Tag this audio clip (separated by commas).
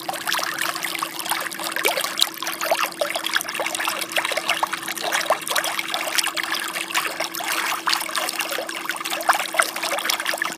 Liquid